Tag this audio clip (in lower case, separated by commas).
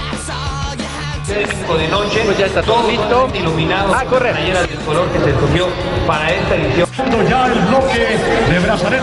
music, speech